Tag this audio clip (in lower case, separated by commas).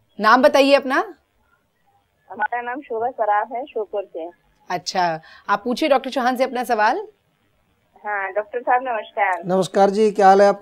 speech